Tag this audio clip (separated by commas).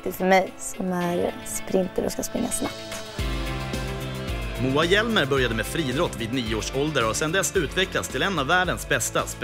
Speech, Music